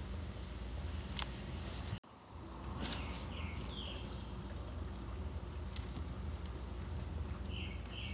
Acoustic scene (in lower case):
park